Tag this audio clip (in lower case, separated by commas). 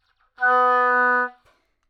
wind instrument, musical instrument, music